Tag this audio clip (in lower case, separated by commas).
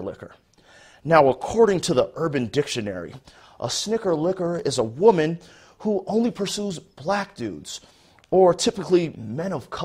speech